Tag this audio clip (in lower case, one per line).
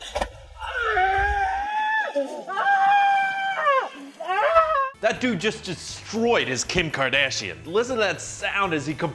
music
speech